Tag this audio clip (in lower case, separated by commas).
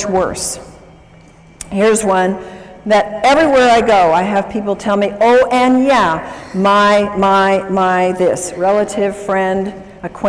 speech